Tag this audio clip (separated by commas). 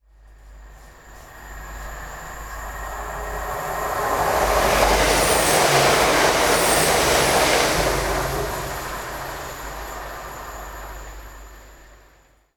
Train, Vehicle, Rail transport